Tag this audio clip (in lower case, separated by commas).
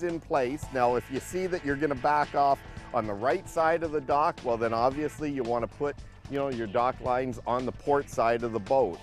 speech, music